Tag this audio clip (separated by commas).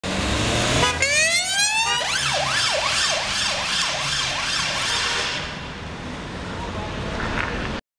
Speech